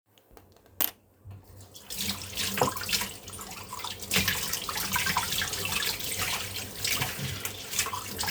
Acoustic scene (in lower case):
kitchen